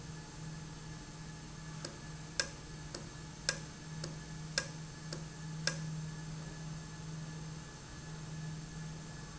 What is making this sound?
valve